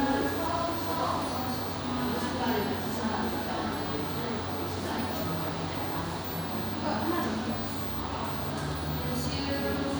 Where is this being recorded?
in a cafe